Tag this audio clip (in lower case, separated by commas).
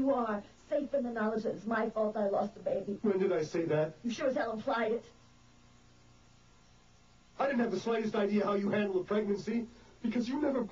speech, conversation